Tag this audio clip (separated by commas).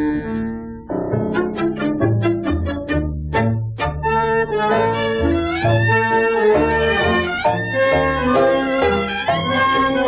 Violin, Music